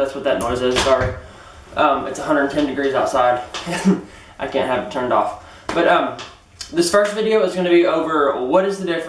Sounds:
inside a small room
speech

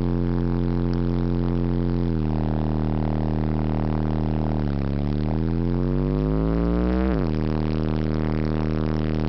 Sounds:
vehicle

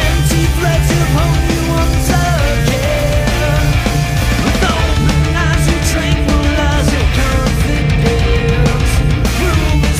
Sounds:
music
happy music

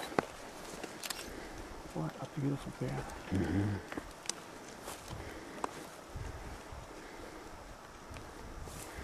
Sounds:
wild animals
speech
animal

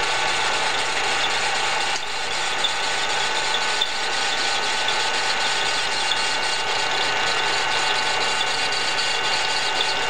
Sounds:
engine

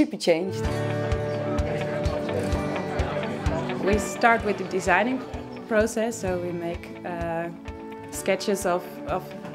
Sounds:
music
speech

